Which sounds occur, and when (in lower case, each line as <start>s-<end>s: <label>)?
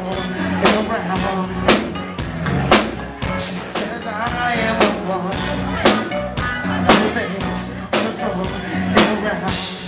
0.0s-0.5s: male singing
0.0s-9.8s: crowd
0.0s-9.8s: music
0.2s-0.6s: speech
0.3s-0.5s: breathing
0.6s-1.5s: male singing
3.2s-5.5s: male singing
5.6s-6.0s: speech
6.6s-7.4s: speech
6.9s-7.6s: male singing
7.9s-8.5s: male singing
8.6s-8.9s: breathing
8.9s-9.5s: male singing